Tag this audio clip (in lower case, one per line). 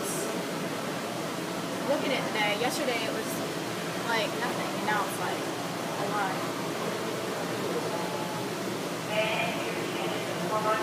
speech babble
speech